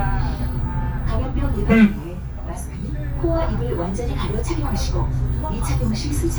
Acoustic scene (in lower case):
bus